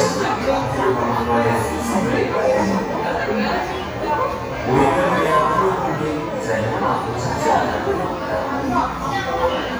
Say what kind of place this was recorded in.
crowded indoor space